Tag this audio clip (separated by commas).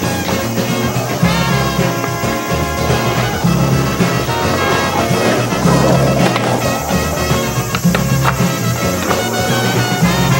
Music, Skateboard